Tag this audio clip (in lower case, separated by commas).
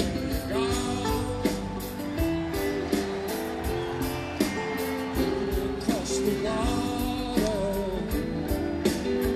music